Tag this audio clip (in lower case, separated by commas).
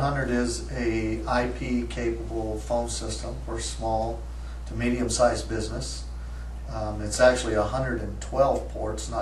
speech